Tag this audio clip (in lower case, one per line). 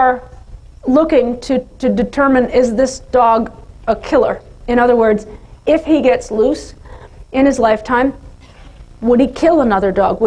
speech